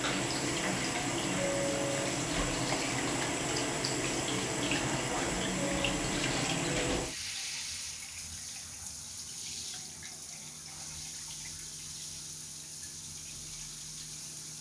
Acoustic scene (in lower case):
restroom